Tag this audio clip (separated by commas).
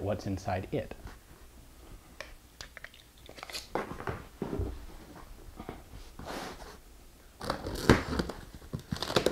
Speech, inside a small room